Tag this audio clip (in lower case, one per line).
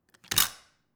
camera
mechanisms